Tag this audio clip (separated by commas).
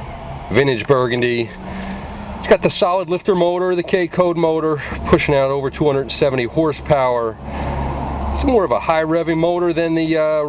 Speech